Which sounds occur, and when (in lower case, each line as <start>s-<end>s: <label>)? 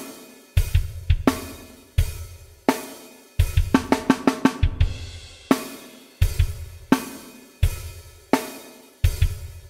0.0s-9.6s: music